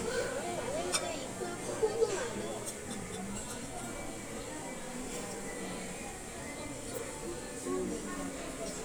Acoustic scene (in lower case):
restaurant